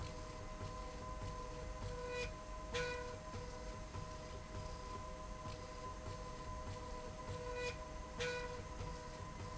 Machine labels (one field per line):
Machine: slide rail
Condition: normal